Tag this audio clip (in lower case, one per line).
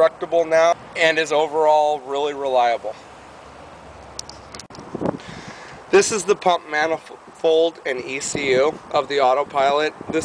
speech